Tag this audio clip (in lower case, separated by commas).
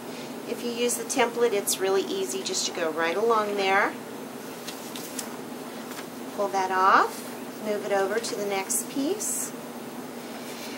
inside a small room, speech